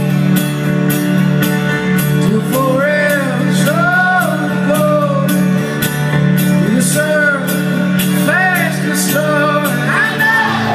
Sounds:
singing
music
outside, urban or man-made

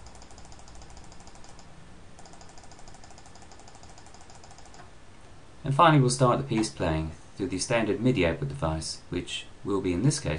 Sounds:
speech

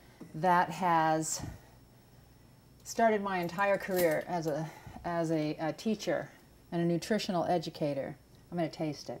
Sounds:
speech

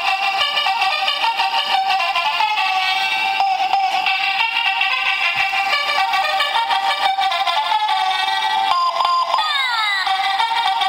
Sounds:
music

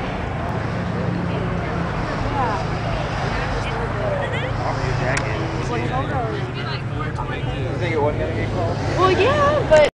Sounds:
vehicle
speech

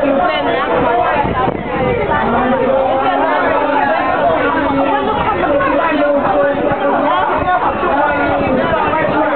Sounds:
clip-clop
speech

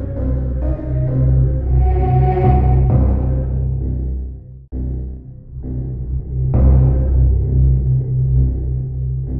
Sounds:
music
theme music

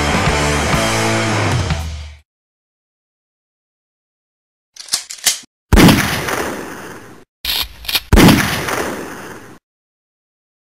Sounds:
burst
soundtrack music
rock music
music

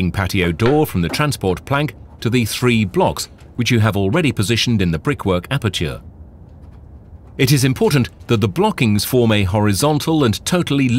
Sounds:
speech

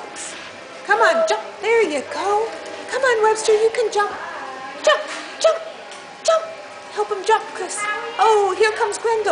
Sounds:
speech

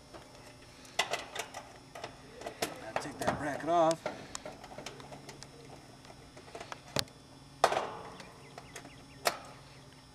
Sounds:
speech

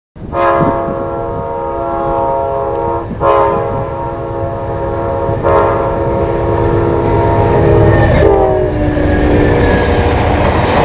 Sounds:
vehicle
train whistle
train

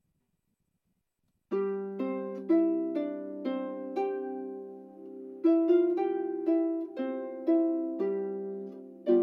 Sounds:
playing harp

